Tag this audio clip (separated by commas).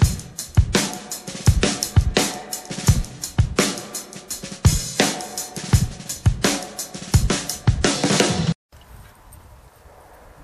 Music